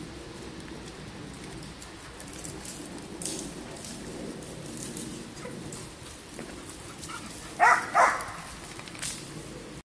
Dogs are running around and barking